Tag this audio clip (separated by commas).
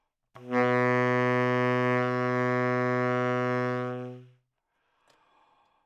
Wind instrument, Musical instrument, Music